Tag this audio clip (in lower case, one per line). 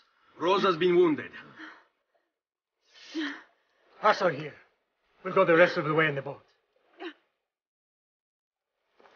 speech